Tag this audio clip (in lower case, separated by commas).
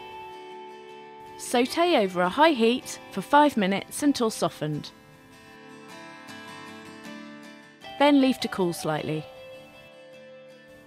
music, speech